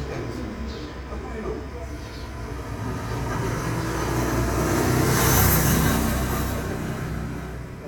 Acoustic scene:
residential area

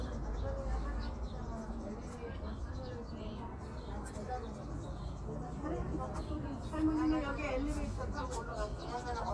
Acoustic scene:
park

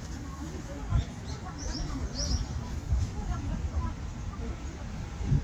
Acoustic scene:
residential area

